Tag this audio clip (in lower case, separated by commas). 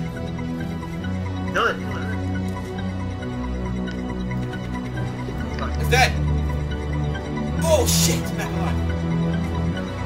music, speech